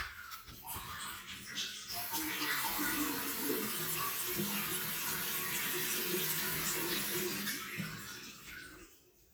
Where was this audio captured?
in a restroom